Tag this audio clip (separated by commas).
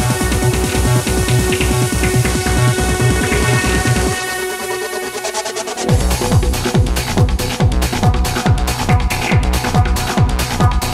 Trance music